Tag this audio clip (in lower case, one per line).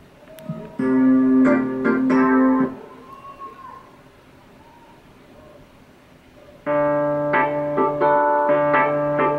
tapping (guitar technique)
music
speech